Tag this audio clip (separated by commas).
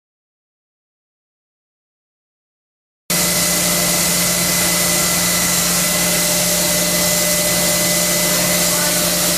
Power tool